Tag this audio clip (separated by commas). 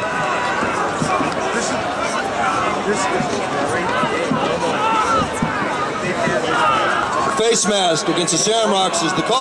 Speech